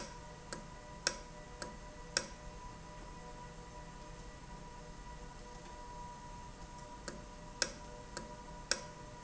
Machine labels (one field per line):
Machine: valve